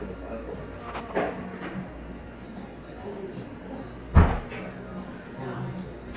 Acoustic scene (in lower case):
cafe